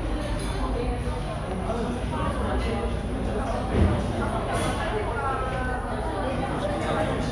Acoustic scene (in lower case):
cafe